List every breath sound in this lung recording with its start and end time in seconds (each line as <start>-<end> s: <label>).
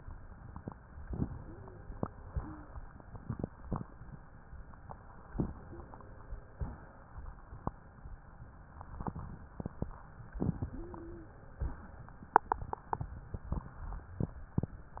1.05-1.98 s: inhalation
1.31-1.80 s: wheeze
2.28-2.74 s: exhalation
2.34-2.70 s: wheeze
5.30-6.51 s: inhalation
5.56-5.91 s: wheeze
6.51-6.97 s: exhalation
10.44-11.55 s: inhalation
10.60-11.37 s: wheeze
11.55-12.01 s: exhalation